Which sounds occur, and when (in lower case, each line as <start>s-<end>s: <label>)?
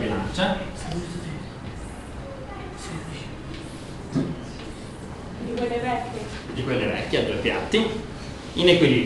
0.0s-0.7s: man speaking
0.0s-9.0s: background noise
5.5s-6.3s: man speaking
6.6s-8.0s: man speaking